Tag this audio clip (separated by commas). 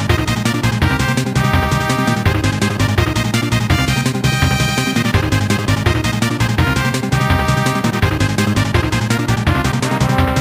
Video game music, Music